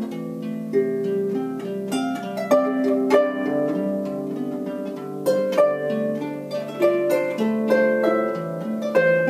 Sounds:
musical instrument
music

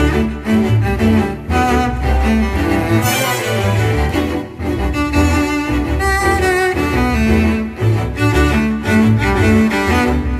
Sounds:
music
wedding music

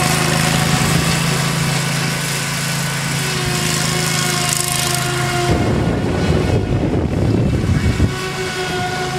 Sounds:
lawn mowing
vehicle
lawn mower

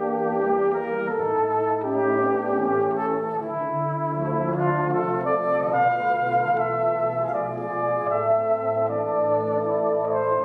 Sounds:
brass instrument
trumpet

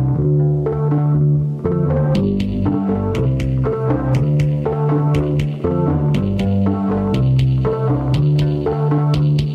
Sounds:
music

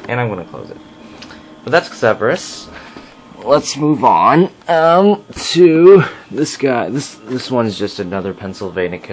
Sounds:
speech

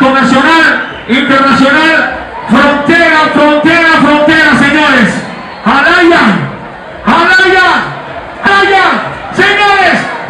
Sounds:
speech

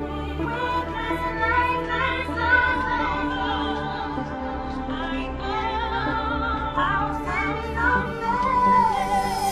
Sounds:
music

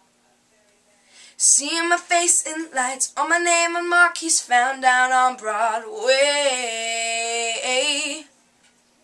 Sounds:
male singing

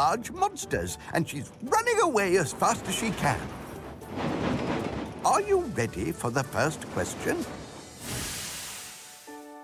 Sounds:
speech
music

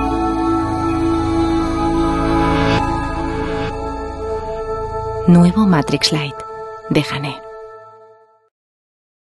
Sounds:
speech
music

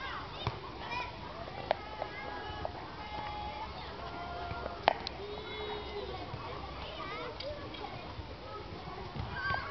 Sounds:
speech

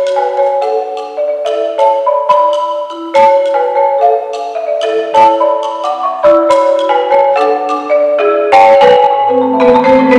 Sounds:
musical instrument
marimba
music
inside a large room or hall
xylophone
percussion

